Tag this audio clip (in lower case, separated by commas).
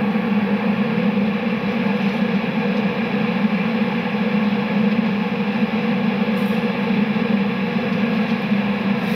airplane